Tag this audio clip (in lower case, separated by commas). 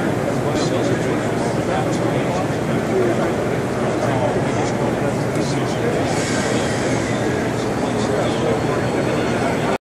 speech